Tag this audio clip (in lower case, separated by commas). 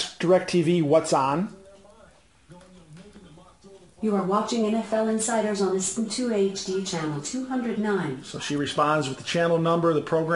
speech